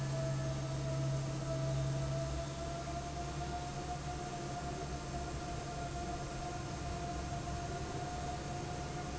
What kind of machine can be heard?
fan